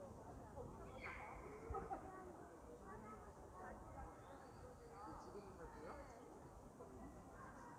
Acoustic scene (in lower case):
park